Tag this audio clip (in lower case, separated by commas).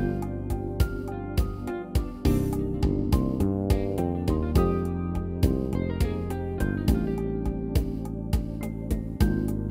music